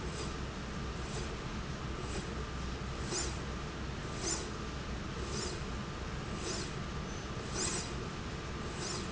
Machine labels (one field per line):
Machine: slide rail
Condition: normal